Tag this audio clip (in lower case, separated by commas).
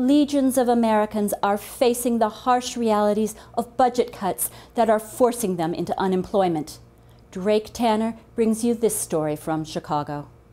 speech